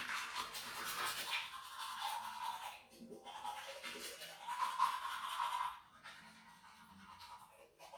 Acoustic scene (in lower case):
restroom